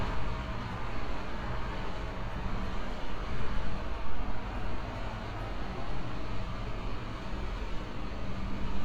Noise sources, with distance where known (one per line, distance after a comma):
large-sounding engine, near